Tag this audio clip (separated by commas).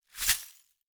Glass